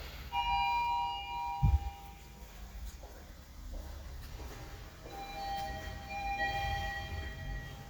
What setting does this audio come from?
elevator